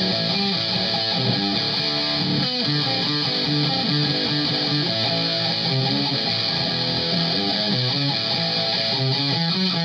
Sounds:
Guitar, Music, Musical instrument, Plucked string instrument

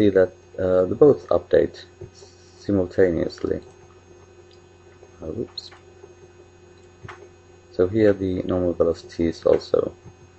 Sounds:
Speech

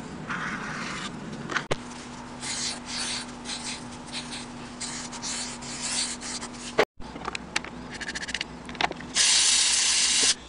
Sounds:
inside a small room

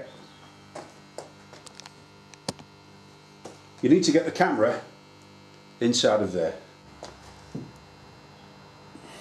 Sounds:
Speech, inside a small room

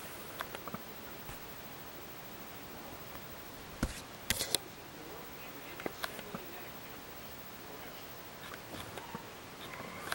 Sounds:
Speech

